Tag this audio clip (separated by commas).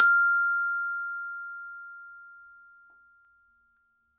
Percussion, Mallet percussion, Glockenspiel, Musical instrument, Music